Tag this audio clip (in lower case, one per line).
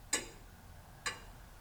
mechanisms
clock